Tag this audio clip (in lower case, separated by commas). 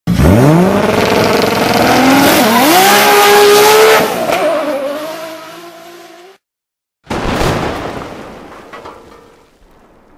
motor vehicle (road), vroom, car, auto racing, vehicle